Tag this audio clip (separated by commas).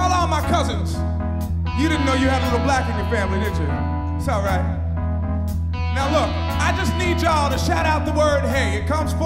Music, Speech